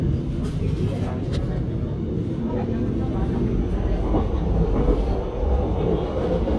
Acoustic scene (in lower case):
subway train